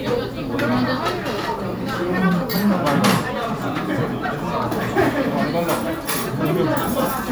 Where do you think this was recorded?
in a restaurant